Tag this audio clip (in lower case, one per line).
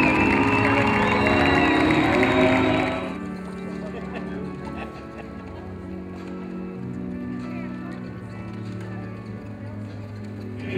music
speech